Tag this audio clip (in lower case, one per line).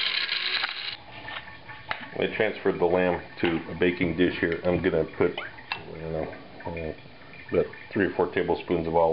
speech